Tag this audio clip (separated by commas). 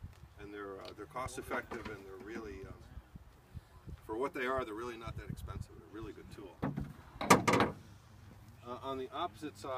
Speech